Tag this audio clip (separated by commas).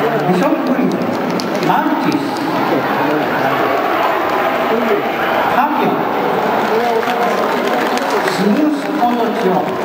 Speech